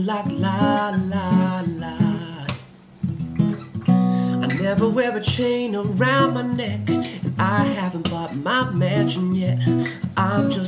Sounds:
Music

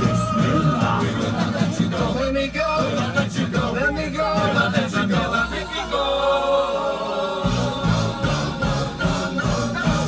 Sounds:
Singing, A capella

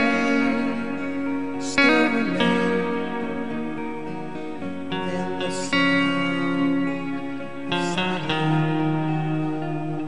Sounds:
Music

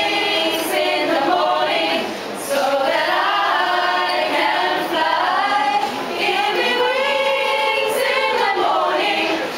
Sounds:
Speech, Choir

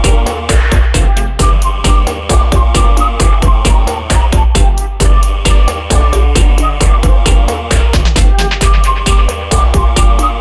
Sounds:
Electronic music, Music

